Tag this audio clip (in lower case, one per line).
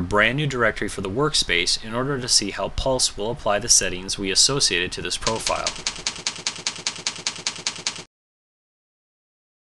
speech